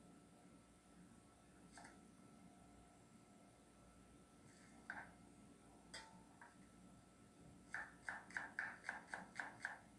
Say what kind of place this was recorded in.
kitchen